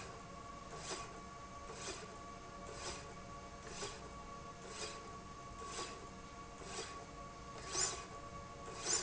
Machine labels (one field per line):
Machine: slide rail